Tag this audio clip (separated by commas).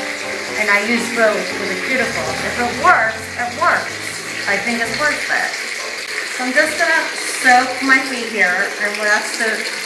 inside a small room, Speech, Music, Bathtub (filling or washing)